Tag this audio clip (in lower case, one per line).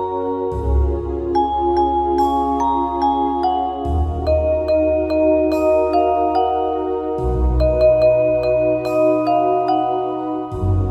xylophone
mallet percussion
glockenspiel